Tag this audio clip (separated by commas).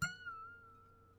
Musical instrument, Harp, Music